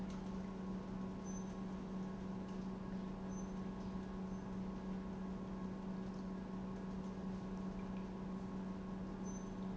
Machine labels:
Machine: pump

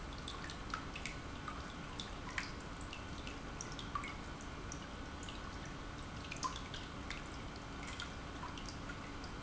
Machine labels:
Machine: pump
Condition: normal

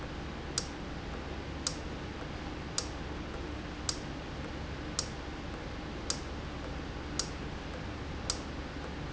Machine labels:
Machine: valve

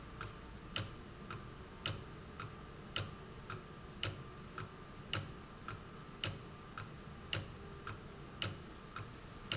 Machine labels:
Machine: valve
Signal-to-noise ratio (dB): 6 dB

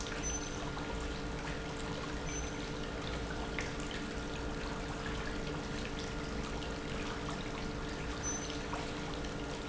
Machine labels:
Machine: pump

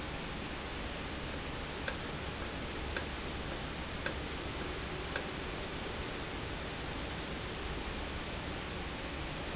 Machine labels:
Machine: valve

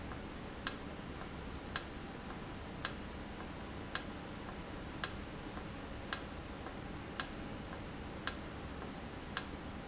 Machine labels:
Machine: valve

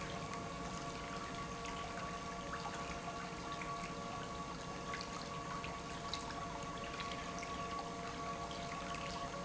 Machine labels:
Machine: pump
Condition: normal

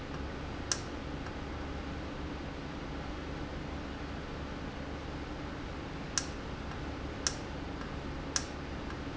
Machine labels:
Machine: valve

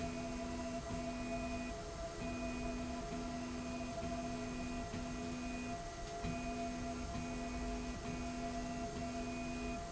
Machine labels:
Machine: slide rail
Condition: normal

